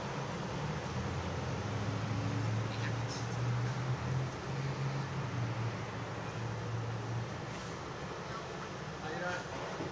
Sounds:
speech

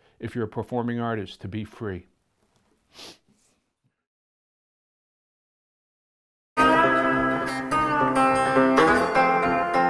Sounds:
plucked string instrument, guitar, music, speech

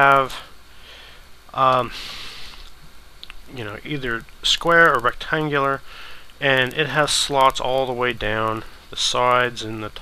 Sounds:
speech

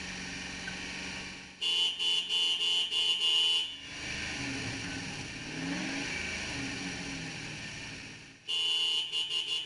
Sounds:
outside, rural or natural, car, vehicle, engine

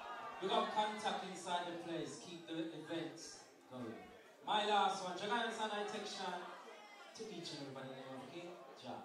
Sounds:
speech

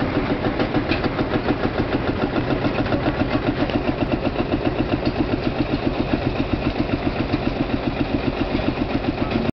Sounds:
vehicle

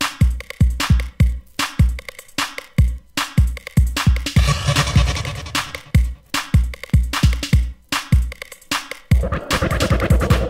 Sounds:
music, techno

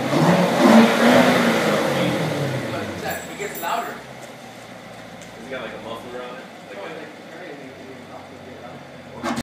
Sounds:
car, vehicle, accelerating, speech

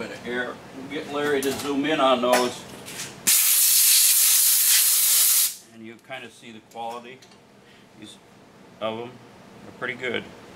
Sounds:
speech, tools

